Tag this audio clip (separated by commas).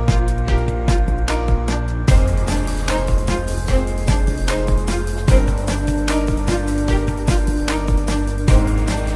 Music